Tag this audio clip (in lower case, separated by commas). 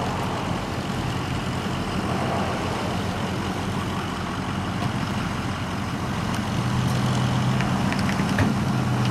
car, vehicle, outside, urban or man-made